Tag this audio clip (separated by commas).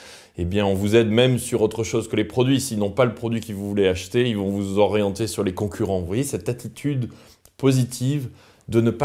Speech